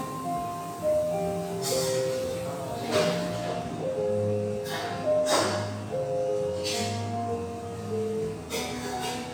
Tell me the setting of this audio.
cafe